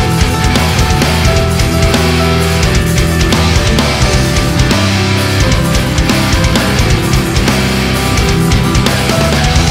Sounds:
music

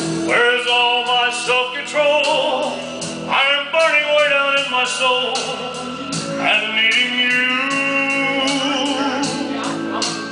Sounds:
speech
music
male singing

